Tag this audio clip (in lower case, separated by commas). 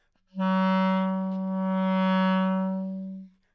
woodwind instrument, music, musical instrument